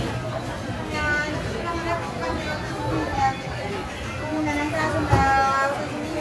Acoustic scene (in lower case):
crowded indoor space